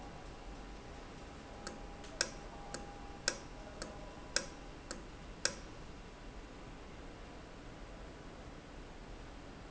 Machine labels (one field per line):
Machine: valve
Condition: normal